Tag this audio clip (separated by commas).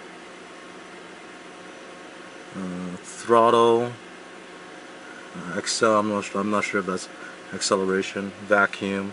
inside a small room, Speech